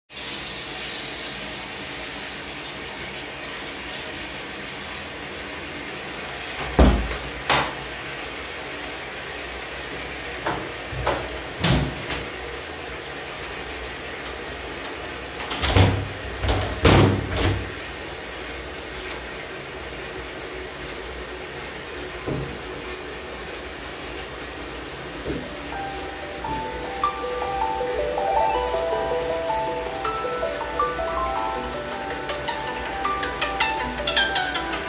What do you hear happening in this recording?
Water was running, i closed the door, then opened the window. Then i got a call.